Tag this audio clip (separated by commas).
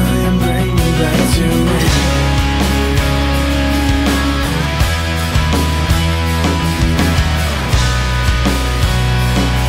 Music, Rock music, Progressive rock